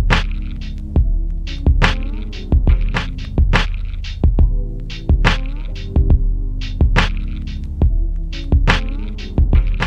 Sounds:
Music

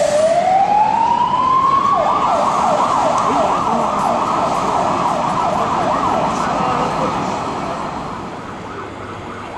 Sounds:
fire truck (siren), Speech

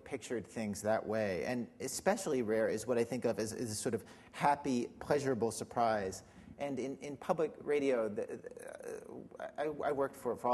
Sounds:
Speech

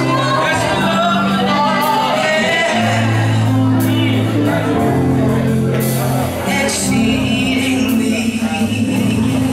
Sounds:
Choir, Music

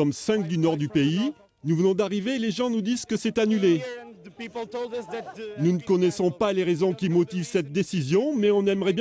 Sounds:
Speech

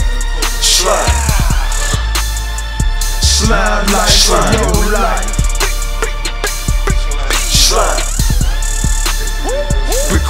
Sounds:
Funk, Music

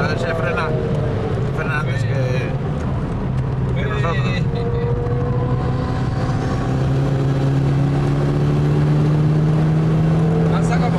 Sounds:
Car, Motor vehicle (road), Vehicle, Speech

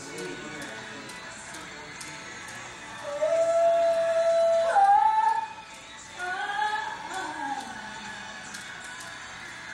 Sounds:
Music, Male singing

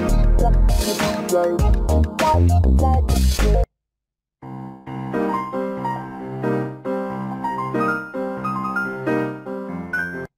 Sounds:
Music

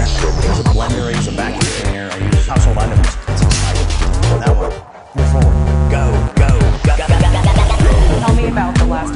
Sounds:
Dubstep, Electronic music, Music, Speech

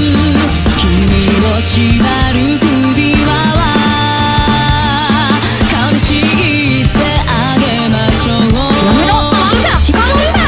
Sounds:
Music, Speech

